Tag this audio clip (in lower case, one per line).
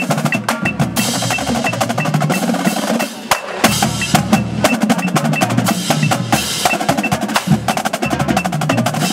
music
speech